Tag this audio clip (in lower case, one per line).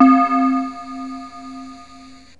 musical instrument
music
keyboard (musical)